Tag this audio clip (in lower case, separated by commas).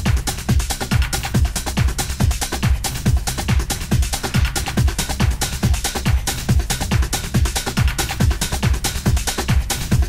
electronic music, music, techno